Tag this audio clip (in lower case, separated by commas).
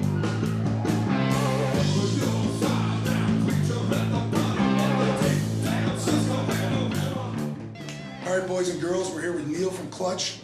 music, speech